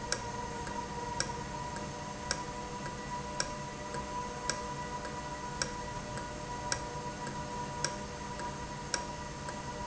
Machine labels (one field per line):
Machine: valve